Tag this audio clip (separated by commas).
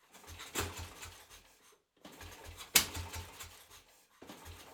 Engine